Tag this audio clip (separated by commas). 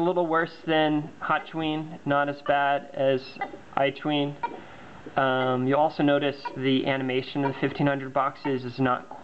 Speech